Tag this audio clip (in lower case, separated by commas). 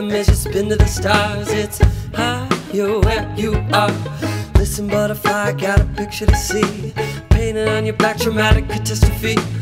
music